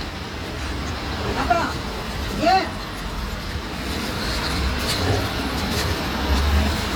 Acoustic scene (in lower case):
street